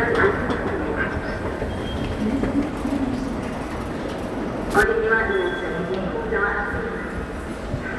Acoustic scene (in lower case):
subway station